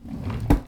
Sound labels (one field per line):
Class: drawer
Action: closing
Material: wooden